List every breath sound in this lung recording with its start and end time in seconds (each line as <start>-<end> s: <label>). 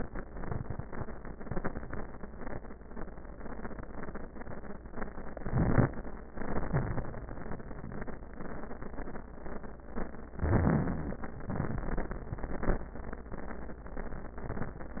5.34-5.93 s: inhalation
5.34-5.93 s: crackles
6.27-7.23 s: exhalation
6.27-7.23 s: crackles
10.36-11.31 s: inhalation
10.36-11.31 s: crackles
11.47-12.29 s: exhalation
11.47-12.29 s: crackles